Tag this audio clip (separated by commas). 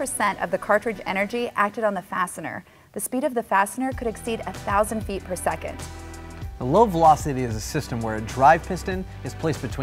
Speech, Music